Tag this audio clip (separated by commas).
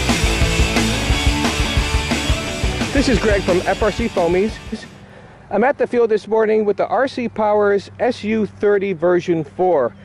Speech, Music